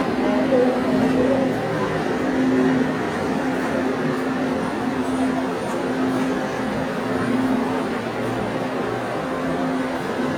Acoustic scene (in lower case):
subway station